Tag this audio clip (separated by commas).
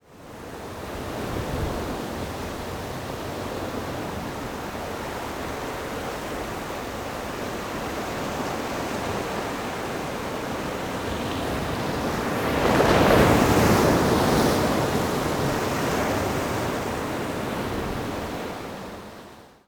Ocean, Water